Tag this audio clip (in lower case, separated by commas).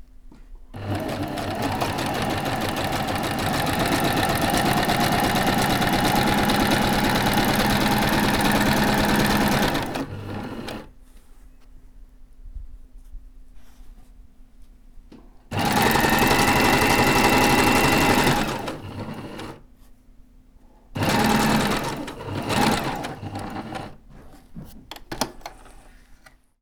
mechanisms, engine